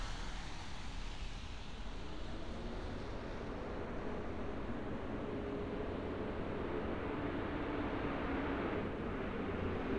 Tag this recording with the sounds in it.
large-sounding engine